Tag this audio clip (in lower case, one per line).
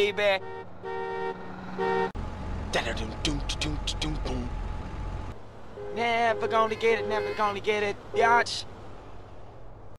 speech
male singing